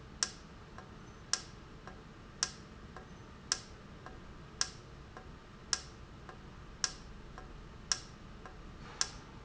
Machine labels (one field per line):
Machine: valve